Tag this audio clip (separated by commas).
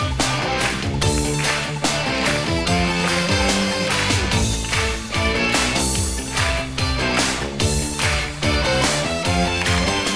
Music